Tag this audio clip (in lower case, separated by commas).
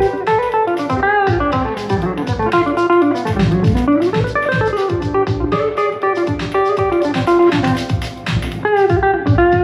strum, drum, guitar, acoustic guitar, musical instrument, music, plucked string instrument